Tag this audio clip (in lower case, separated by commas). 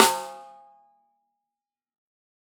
drum, musical instrument, music, snare drum, percussion